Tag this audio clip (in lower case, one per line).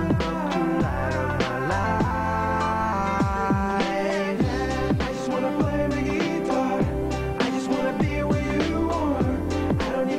musical instrument
music
acoustic guitar
guitar